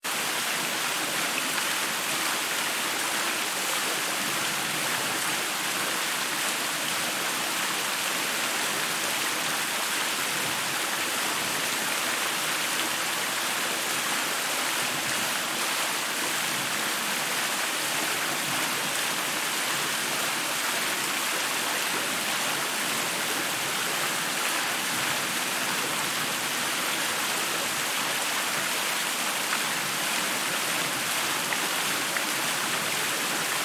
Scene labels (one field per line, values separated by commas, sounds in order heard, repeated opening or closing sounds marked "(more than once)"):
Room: bathroom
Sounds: running water, footsteps